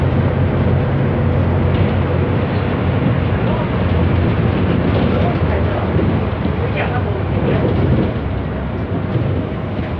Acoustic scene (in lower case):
bus